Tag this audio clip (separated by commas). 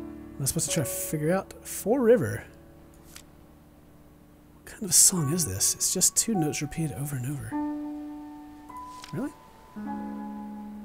Music, Speech